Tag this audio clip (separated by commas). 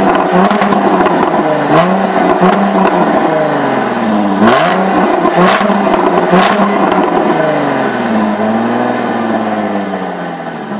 Rattle